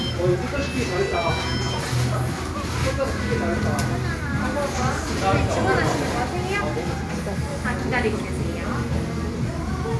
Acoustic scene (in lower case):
cafe